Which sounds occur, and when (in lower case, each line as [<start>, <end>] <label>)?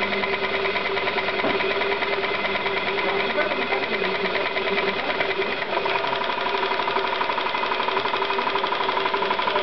[0.00, 9.62] mechanisms
[1.42, 1.59] tap
[2.97, 5.10] man speaking
[9.27, 9.62] man speaking